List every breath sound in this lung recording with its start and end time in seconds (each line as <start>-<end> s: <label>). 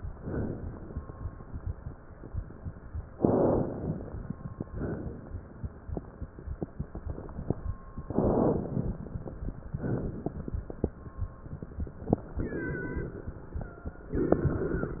0.00-0.93 s: exhalation
3.17-4.66 s: inhalation
4.67-6.16 s: exhalation
8.09-9.75 s: inhalation
9.79-11.46 s: exhalation
12.37-14.12 s: inhalation
12.37-14.12 s: wheeze
14.13-14.62 s: wheeze
14.13-15.00 s: exhalation